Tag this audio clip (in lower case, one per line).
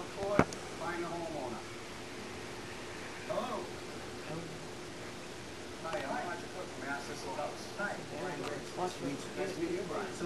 speech